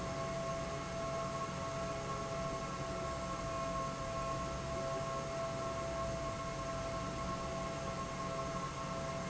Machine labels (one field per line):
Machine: fan